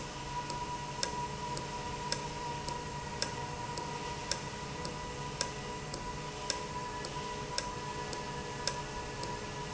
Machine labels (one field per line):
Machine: valve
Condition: normal